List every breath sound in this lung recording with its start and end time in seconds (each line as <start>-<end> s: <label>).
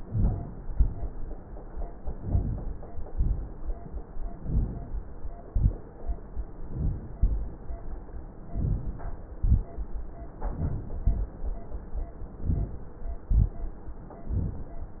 0.59-1.00 s: exhalation
2.05-2.87 s: inhalation
3.12-3.53 s: exhalation
4.33-5.00 s: inhalation
5.45-5.87 s: exhalation
6.59-7.16 s: inhalation
7.16-7.58 s: exhalation
8.51-9.08 s: inhalation
9.35-9.75 s: exhalation
12.43-12.82 s: inhalation
13.24-13.64 s: exhalation